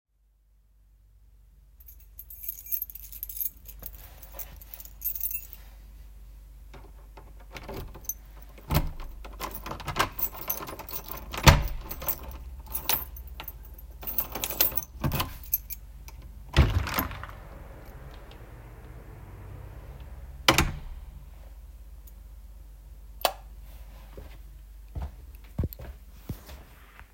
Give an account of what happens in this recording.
I handled a keychain near the door, opened the door, and walked into the room. After entering, I switched on the light and closed the door.